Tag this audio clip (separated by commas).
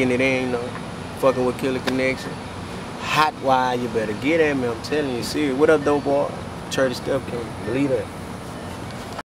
Speech